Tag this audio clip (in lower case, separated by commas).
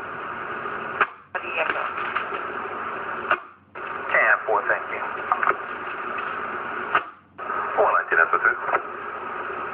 radio, speech